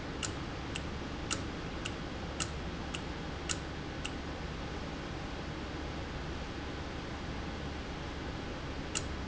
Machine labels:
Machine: valve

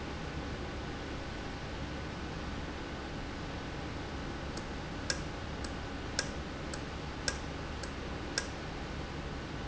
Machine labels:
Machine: valve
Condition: normal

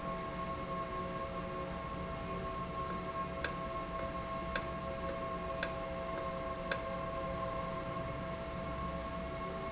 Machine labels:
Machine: valve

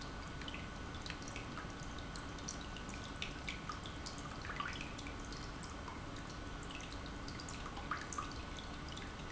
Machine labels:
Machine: pump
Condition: normal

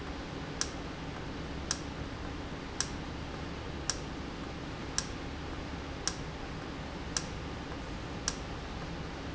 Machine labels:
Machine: valve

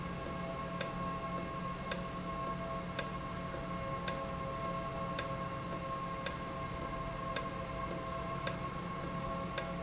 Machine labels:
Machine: valve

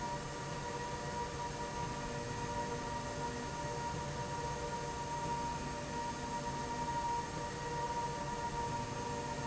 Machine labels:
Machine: slide rail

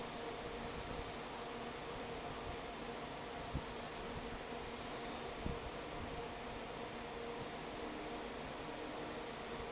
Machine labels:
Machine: fan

